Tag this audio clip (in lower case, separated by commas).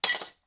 glass